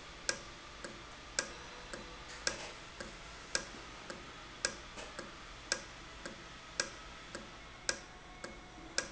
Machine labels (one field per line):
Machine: valve